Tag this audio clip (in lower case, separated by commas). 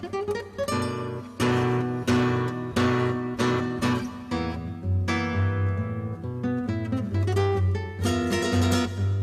acoustic guitar, strum, musical instrument, guitar, music, plucked string instrument